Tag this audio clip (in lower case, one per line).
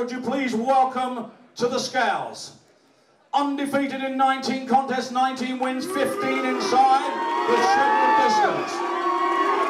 male speech